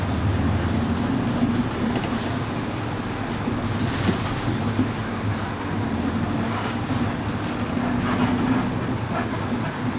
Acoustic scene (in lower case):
bus